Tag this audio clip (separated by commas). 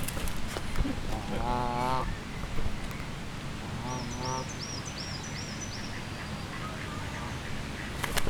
Wild animals, Bird, livestock, Fowl, Animal